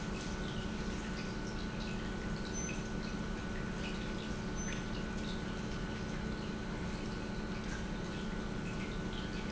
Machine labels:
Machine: pump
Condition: normal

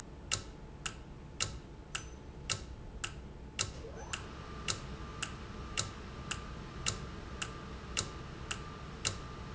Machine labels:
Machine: valve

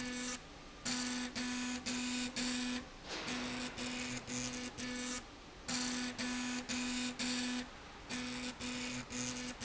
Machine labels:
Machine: slide rail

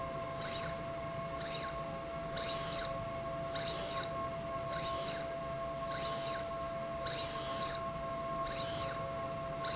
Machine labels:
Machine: slide rail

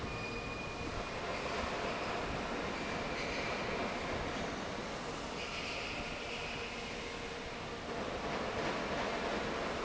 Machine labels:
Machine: fan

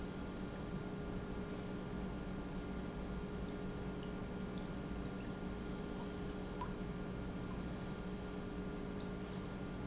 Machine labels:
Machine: pump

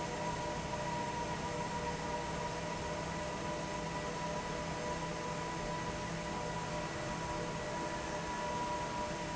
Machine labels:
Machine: fan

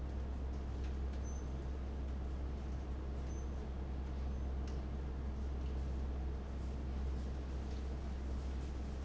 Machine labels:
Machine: fan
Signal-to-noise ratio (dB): 6 dB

